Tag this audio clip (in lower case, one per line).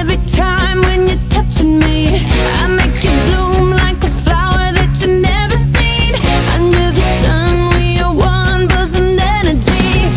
music